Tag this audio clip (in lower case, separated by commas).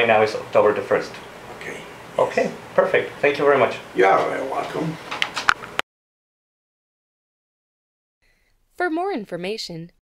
speech